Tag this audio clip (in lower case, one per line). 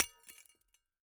shatter
glass